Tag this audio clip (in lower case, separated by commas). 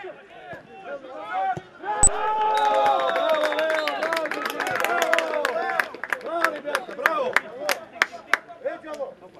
speech